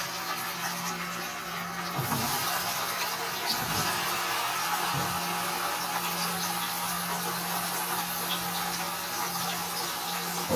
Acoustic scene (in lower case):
kitchen